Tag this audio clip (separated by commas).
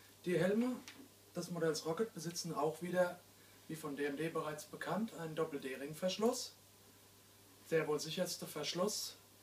Speech